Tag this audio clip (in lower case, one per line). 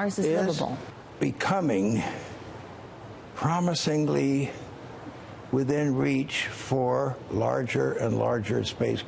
speech